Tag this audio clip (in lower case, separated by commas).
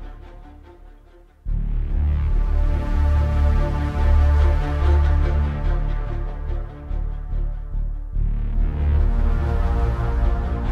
music